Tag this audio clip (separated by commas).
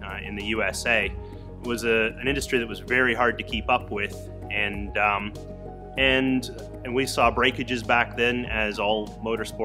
Speech, Music